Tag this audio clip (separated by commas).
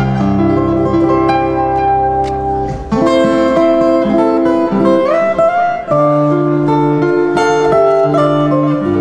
Musical instrument, Guitar, Plucked string instrument, Music, Acoustic guitar